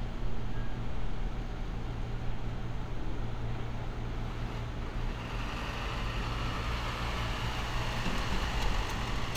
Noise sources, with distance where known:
engine of unclear size, near

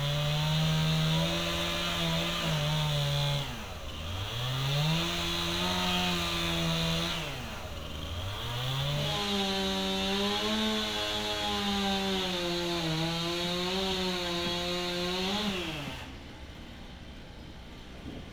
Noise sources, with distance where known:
chainsaw, near

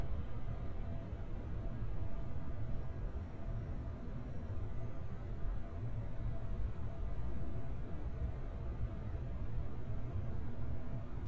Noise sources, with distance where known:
background noise

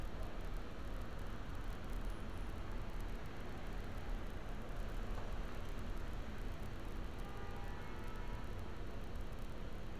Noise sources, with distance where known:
car horn, far

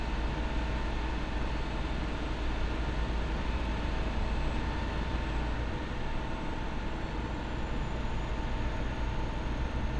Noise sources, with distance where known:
engine of unclear size, near

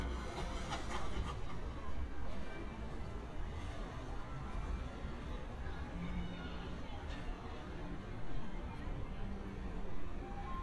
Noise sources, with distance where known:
small-sounding engine
music from an unclear source, far
person or small group talking, far

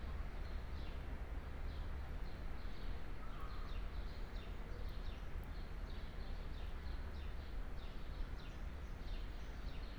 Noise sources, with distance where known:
background noise

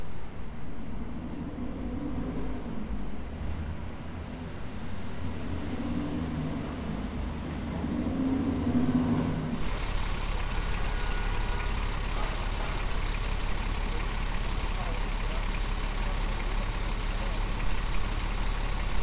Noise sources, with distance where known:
large-sounding engine

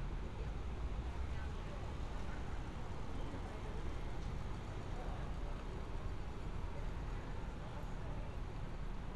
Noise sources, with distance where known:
person or small group talking

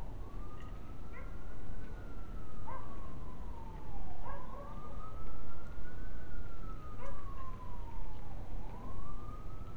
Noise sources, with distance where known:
siren, far
dog barking or whining, far

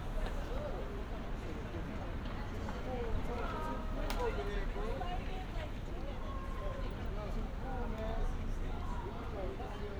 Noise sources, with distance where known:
person or small group talking

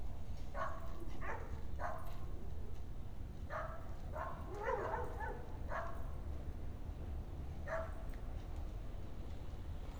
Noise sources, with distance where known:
dog barking or whining

